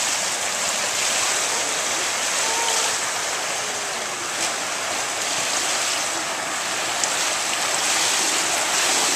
Constant flowing water